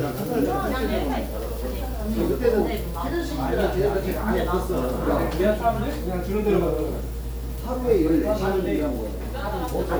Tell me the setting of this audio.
crowded indoor space